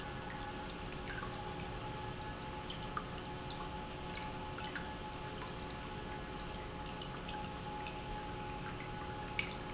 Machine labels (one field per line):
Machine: pump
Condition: normal